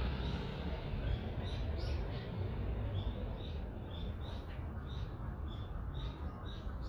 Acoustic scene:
residential area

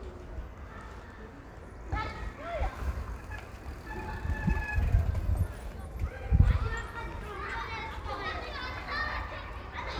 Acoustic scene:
residential area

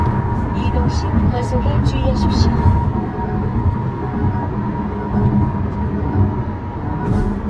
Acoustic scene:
car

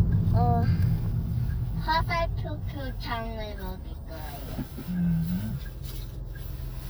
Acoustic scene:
car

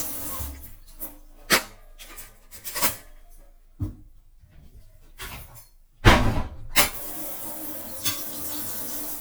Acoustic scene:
kitchen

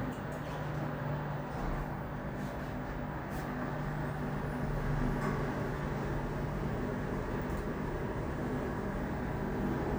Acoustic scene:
elevator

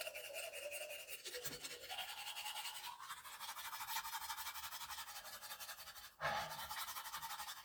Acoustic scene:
restroom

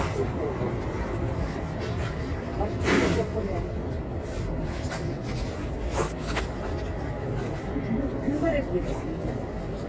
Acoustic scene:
residential area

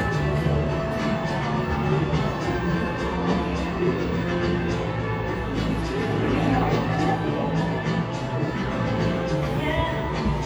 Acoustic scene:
cafe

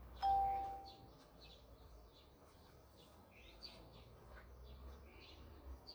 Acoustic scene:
park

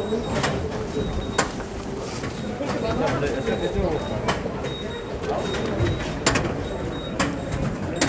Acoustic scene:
subway station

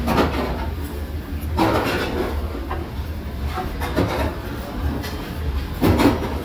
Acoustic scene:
restaurant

